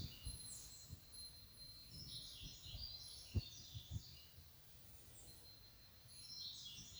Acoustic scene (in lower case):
park